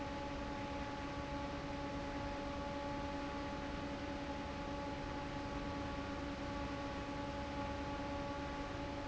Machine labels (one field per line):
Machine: fan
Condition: normal